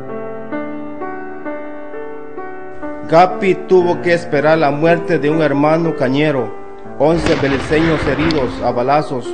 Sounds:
Speech, Music

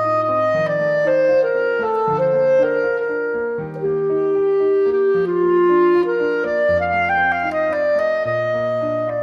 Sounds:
playing clarinet, Clarinet, Music

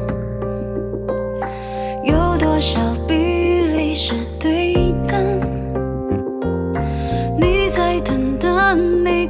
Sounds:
Music

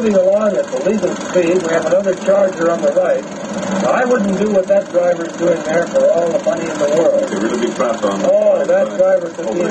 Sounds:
Speech

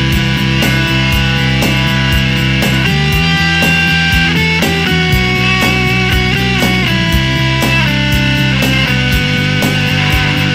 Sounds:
Distortion, Music

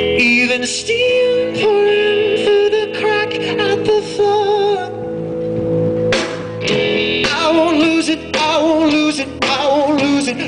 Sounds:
Music

